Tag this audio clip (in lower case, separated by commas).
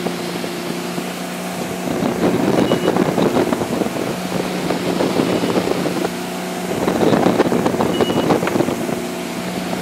water vehicle, ocean, wind, speedboat, wind noise (microphone)